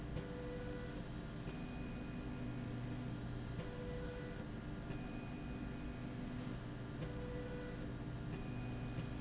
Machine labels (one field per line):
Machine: slide rail